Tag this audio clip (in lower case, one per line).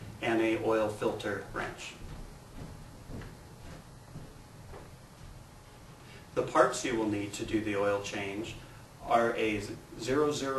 speech